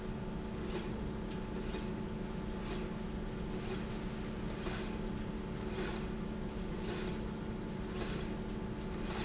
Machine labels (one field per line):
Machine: slide rail